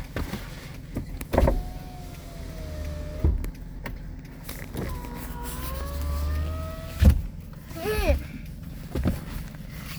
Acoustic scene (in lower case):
car